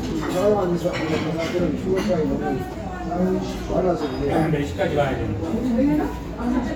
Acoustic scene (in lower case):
restaurant